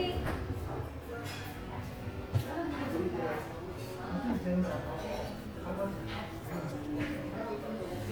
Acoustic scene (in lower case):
crowded indoor space